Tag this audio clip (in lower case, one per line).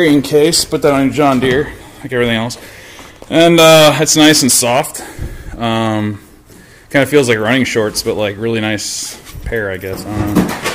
speech